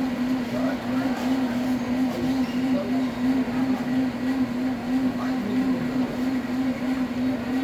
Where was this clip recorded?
in a cafe